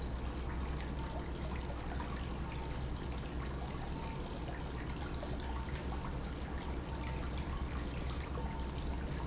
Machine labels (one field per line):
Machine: pump